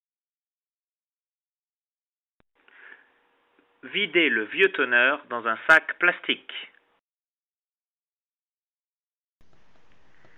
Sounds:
speech

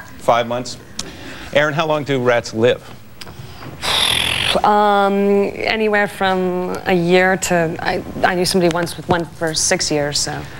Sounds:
speech

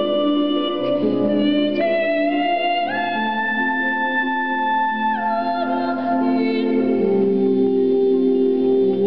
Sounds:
harp, singing, musical instrument, music

